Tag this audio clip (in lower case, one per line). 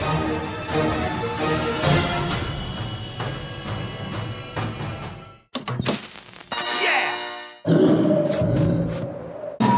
music